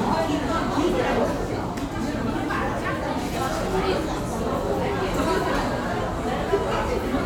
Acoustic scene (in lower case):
crowded indoor space